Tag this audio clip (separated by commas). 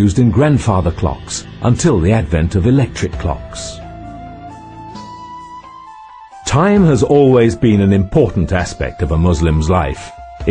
Speech, Music